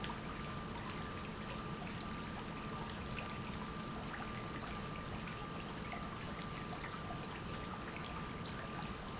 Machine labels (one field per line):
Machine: pump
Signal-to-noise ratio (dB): 0 dB